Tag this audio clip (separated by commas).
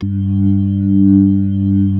Music, Musical instrument, Keyboard (musical), Organ